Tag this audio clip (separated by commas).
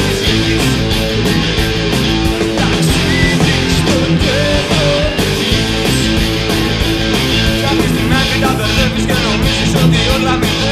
Plucked string instrument, Electric guitar, Strum, Musical instrument, Music, playing electric guitar